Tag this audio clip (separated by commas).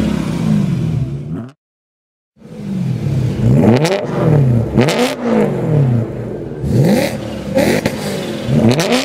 Car passing by